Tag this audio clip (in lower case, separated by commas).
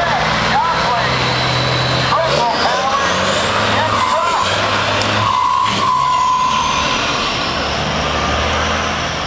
truck, vehicle, speech